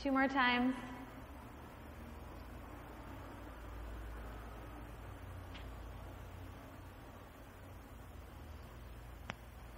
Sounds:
speech

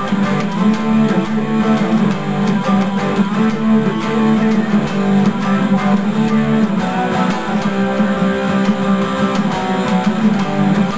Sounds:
bass guitar, plucked string instrument, musical instrument, guitar, music

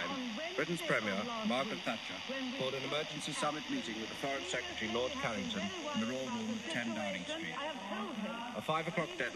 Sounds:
speech

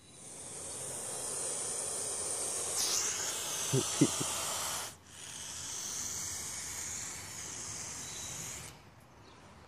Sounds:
snake rattling

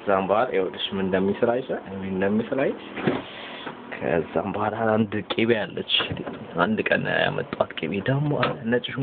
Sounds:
speech, inside a small room

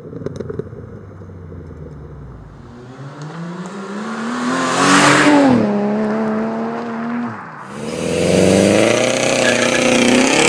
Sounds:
clatter

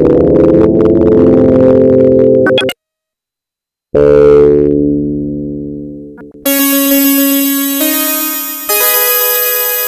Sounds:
music

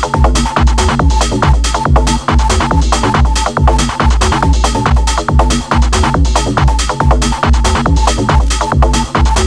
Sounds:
electronic music, techno, music

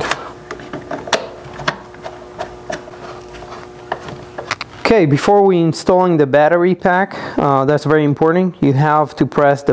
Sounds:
speech

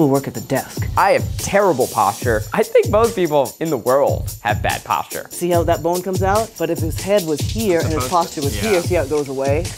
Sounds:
people finger snapping

